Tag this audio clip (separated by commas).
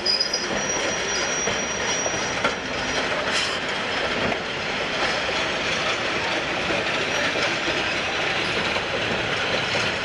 train whistling